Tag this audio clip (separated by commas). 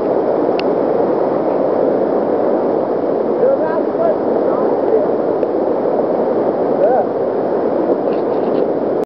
Speech